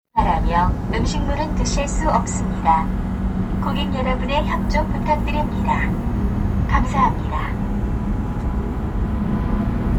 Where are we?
on a subway train